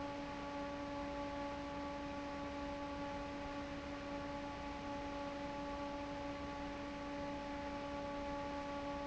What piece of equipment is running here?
fan